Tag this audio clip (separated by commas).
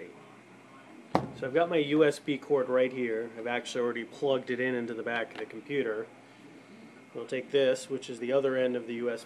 Speech